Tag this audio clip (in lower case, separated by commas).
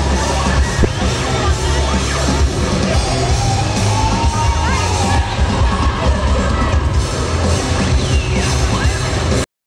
music, speech